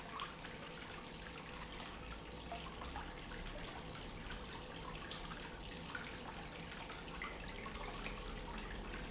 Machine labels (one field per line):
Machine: pump